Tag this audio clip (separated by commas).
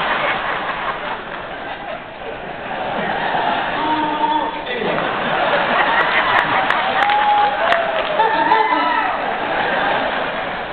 Speech, inside a large room or hall